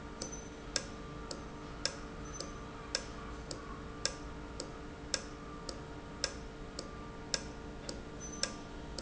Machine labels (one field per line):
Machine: valve